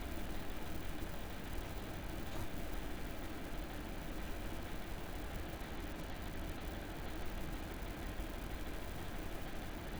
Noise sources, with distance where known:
engine of unclear size

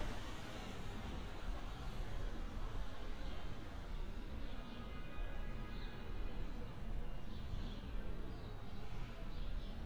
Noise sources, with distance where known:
background noise

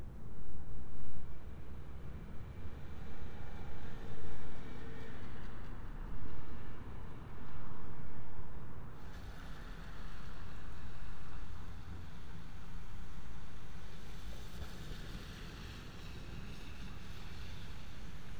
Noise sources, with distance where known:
engine of unclear size

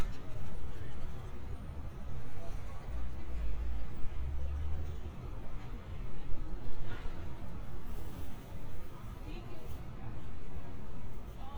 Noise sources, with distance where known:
background noise

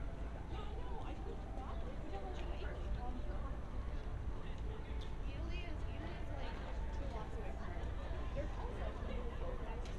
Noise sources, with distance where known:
music from an unclear source; person or small group talking, near

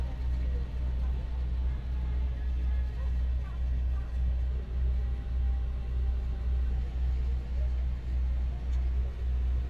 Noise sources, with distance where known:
large-sounding engine, near

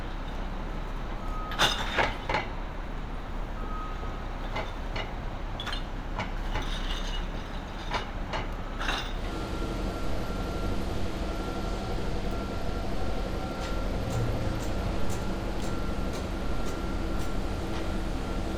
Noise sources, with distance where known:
non-machinery impact; reverse beeper

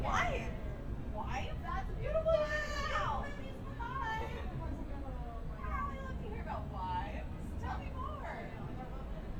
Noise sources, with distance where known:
person or small group talking, near

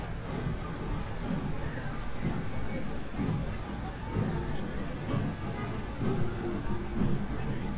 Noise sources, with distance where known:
car horn, far

